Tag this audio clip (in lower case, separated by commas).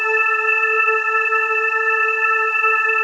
keyboard (musical), organ, music, musical instrument